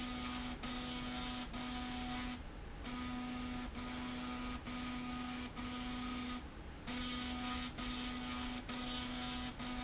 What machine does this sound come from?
slide rail